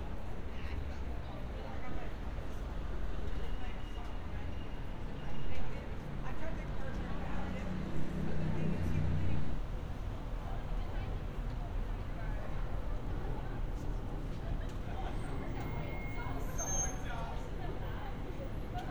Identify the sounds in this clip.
engine of unclear size, person or small group talking